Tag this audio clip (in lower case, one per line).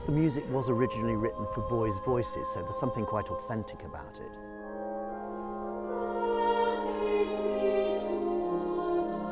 speech
choir
music